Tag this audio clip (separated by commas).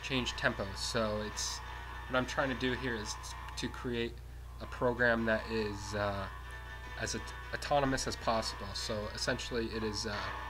Music, Speech, Harmonic